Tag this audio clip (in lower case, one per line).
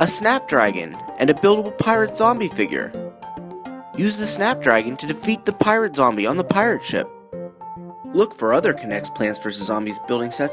speech
music